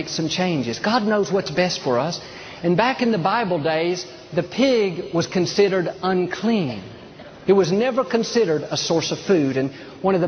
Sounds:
speech

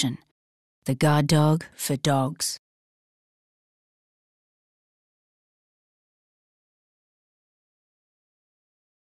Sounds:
speech

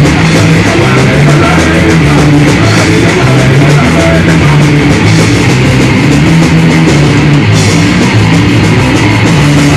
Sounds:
music

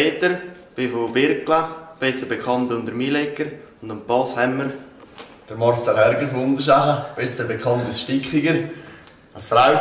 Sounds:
speech

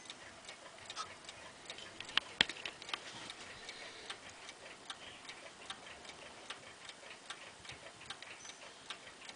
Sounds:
tick-tock

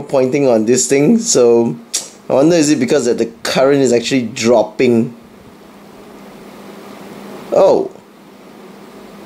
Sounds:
speech

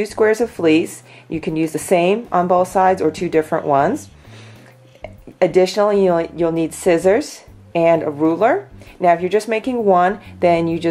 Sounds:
music
speech

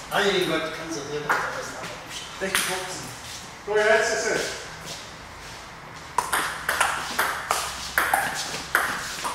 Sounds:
playing table tennis

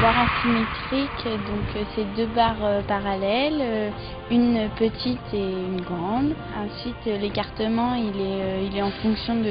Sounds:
speech
music

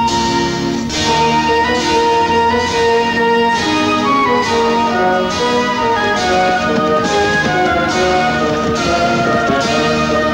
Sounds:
music

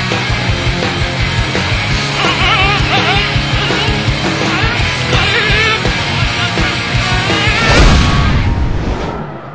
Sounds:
music

